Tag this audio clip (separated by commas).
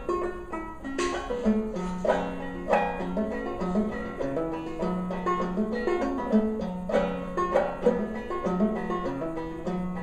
Plucked string instrument, Music, Musical instrument, Banjo